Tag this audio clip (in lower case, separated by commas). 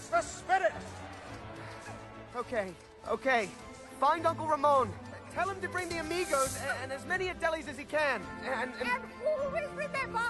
speech, music